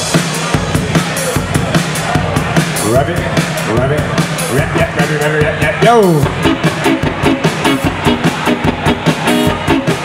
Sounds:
music
speech

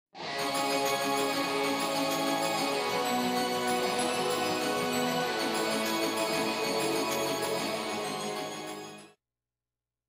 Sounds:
music

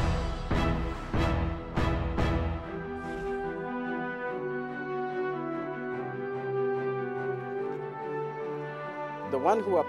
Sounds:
music

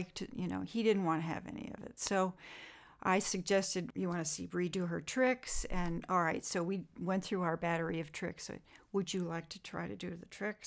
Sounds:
speech

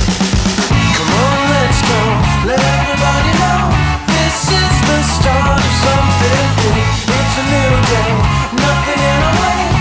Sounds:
grunge
music

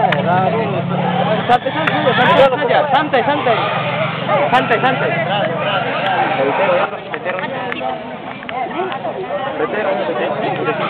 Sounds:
speech

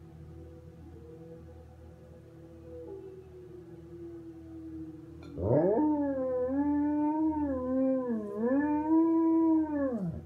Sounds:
dog
domestic animals
animal

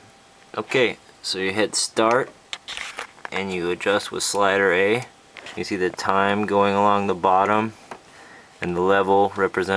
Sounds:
speech

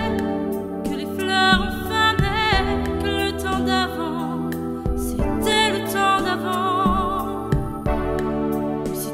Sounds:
music

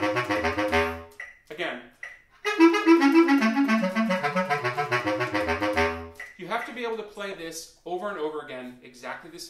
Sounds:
musical instrument
clarinet
speech
inside a small room
woodwind instrument
music

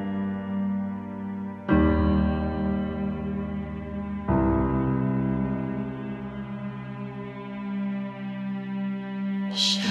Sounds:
music

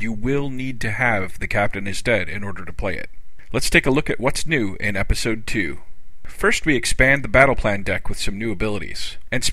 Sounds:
speech

